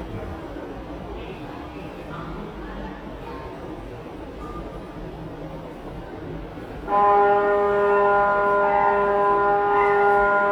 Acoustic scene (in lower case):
subway station